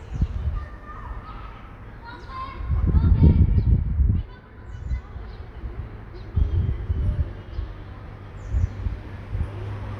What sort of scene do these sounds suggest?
residential area